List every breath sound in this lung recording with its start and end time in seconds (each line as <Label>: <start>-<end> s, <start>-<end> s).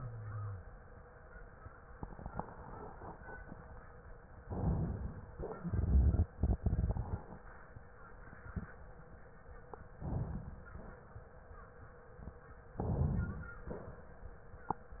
Inhalation: 4.38-5.36 s, 9.98-10.73 s, 12.77-13.59 s
Exhalation: 5.62-7.24 s
Wheeze: 0.00-0.64 s
Crackles: 5.62-7.24 s